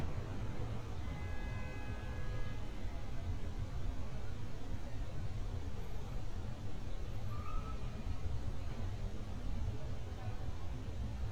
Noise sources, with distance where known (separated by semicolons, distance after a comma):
car horn, far; person or small group talking, far